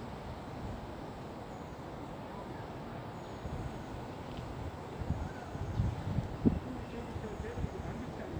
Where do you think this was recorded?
in a park